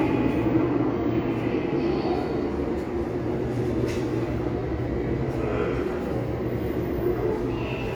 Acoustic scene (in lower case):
subway station